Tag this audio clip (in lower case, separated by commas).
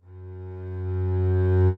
bowed string instrument, music, musical instrument